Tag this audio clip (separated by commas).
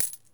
Domestic sounds, Coin (dropping)